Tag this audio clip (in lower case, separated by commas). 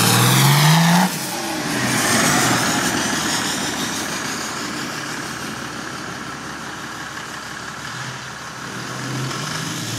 idling, medium engine (mid frequency), revving, engine, vehicle